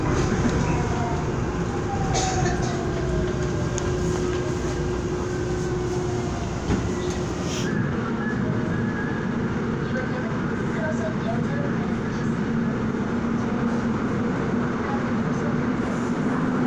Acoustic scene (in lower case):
subway train